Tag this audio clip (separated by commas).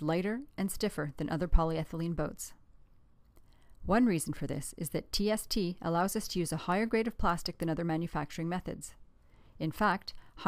Speech